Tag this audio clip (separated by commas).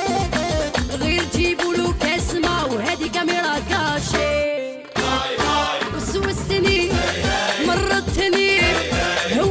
Music